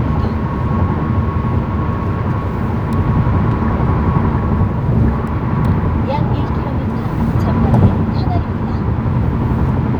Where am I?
in a car